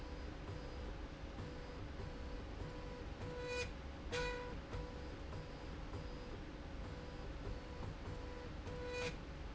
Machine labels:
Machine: slide rail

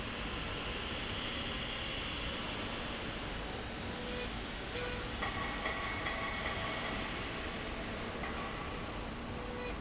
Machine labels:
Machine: slide rail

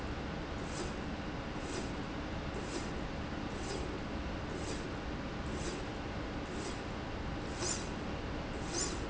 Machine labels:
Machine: slide rail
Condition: normal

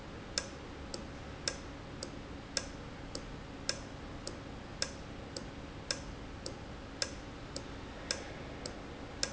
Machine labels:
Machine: valve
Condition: normal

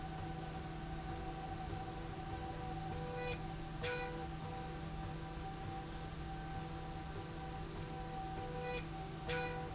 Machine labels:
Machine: slide rail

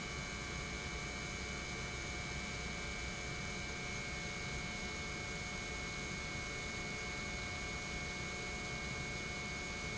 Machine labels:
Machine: pump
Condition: normal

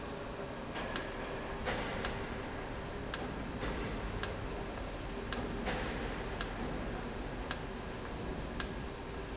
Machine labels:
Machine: valve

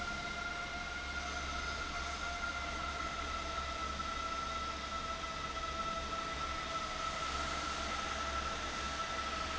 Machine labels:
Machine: fan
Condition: abnormal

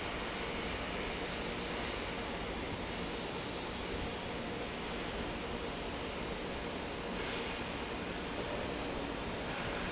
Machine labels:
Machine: fan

